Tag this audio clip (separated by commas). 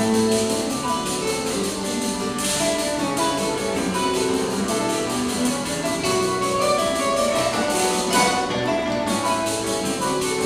Strum, Music, Guitar, Musical instrument, Plucked string instrument, Acoustic guitar